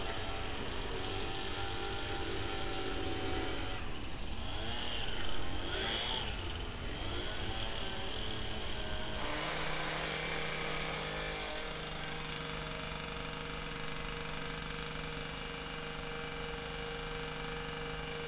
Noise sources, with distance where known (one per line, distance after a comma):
chainsaw